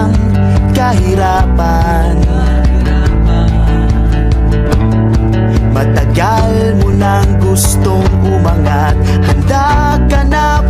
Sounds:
new-age music, music, happy music, background music

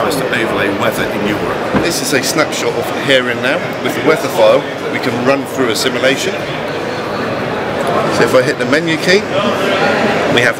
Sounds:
speech

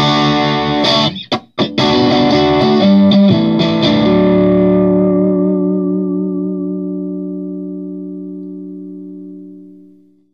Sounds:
music

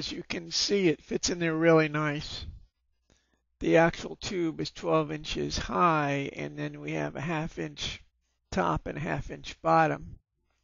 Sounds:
speech

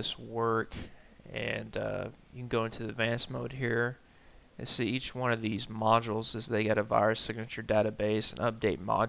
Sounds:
speech

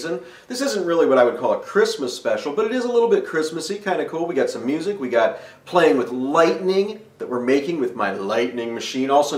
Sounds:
speech

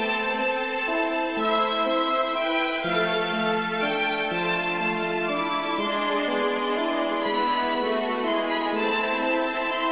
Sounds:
music

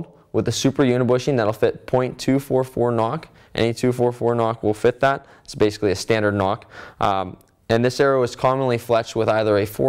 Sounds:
speech

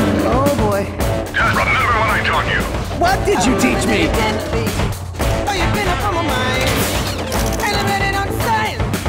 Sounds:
speech, music

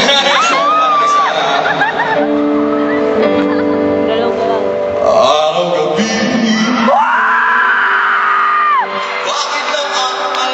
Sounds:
singing, music, speech, inside a large room or hall

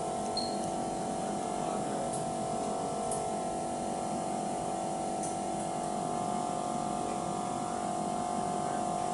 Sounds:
speech

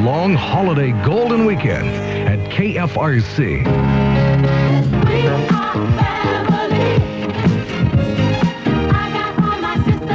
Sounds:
music, speech, sampler

